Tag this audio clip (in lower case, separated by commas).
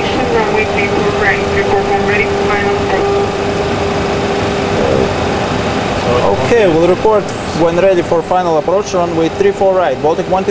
speech, aircraft, vehicle